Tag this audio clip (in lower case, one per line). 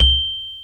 mallet percussion
musical instrument
music
percussion
xylophone